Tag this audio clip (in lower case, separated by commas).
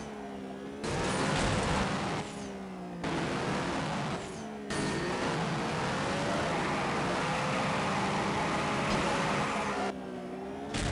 car